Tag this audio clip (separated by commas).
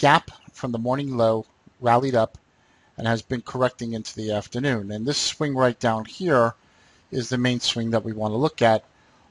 Speech